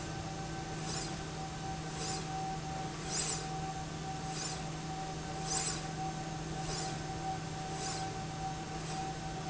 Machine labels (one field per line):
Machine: slide rail